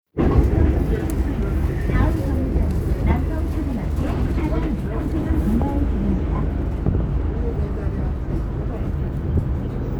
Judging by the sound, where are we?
on a bus